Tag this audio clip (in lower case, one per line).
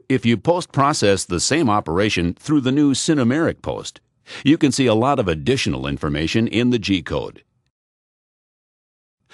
speech